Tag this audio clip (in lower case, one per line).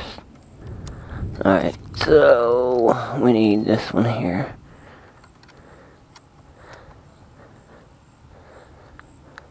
speech